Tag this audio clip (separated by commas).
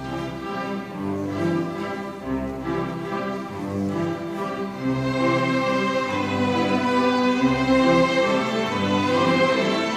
Orchestra